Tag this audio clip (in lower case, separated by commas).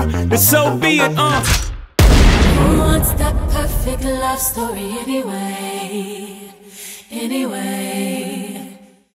music, speech